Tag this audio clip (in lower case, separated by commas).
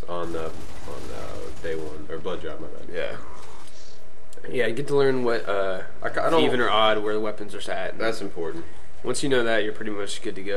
speech